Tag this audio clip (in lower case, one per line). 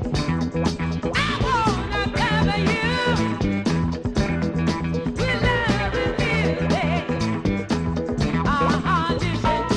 music
soul music